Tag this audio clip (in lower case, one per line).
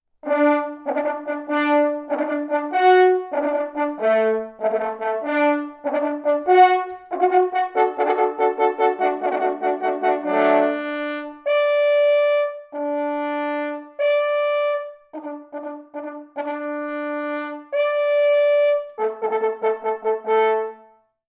brass instrument
musical instrument
music